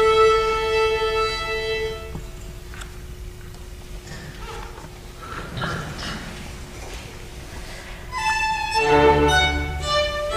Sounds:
fiddle, Musical instrument, Music

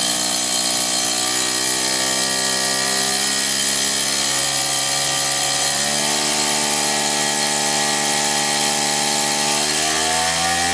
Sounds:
Engine, Drill, Power tool

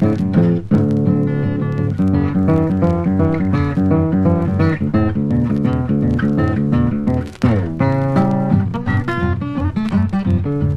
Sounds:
Guitar, Music, Blues, Bass guitar

